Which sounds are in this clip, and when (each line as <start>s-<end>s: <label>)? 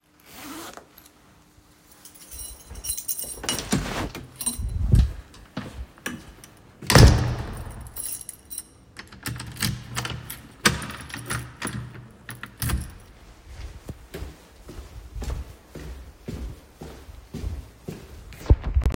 2.3s-5.7s: keys
4.9s-5.3s: door
6.7s-7.9s: door
7.4s-13.1s: keys
13.7s-19.0s: footsteps